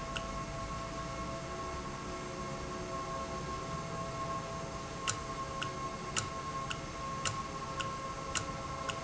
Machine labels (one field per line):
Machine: valve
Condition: normal